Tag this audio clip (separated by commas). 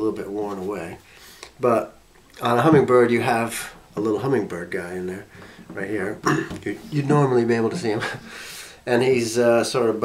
Speech